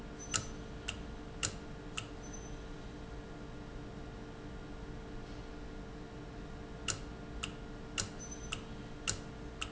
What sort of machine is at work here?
valve